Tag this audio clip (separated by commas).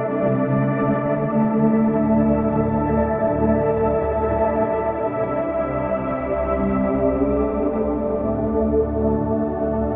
Ambient music, Music